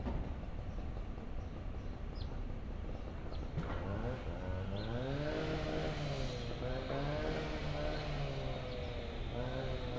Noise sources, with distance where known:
chainsaw

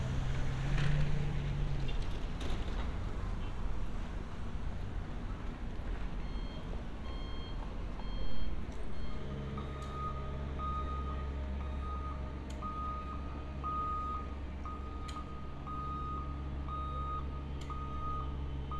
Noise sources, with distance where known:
reverse beeper

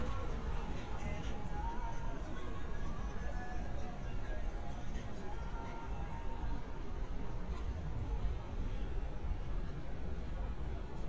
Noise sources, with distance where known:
music from a moving source, near

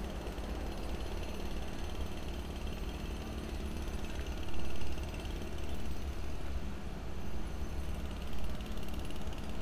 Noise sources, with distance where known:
jackhammer

